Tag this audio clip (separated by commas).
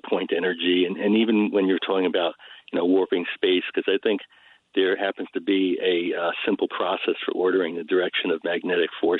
Speech